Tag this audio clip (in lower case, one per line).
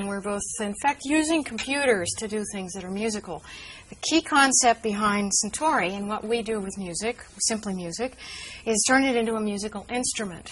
speech